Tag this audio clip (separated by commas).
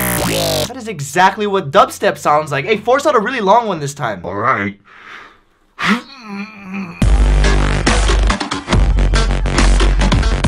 Music, Speech, inside a small room